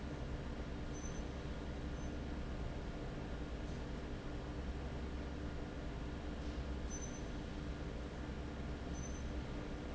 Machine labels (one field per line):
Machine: fan